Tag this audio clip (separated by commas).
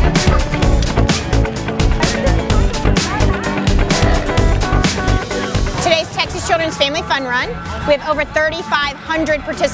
Music, Speech